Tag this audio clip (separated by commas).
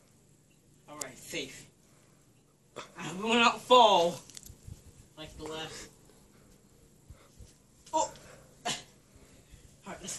Speech